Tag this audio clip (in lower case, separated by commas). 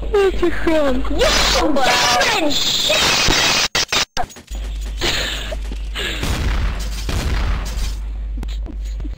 speech, inside a small room